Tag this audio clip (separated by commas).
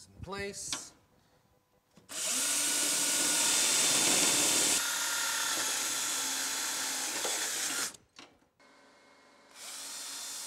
Speech, Drill